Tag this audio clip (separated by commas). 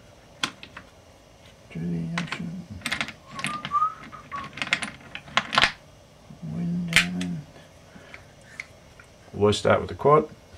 Speech, inside a small room